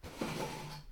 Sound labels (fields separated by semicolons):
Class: furniture moving; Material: wooden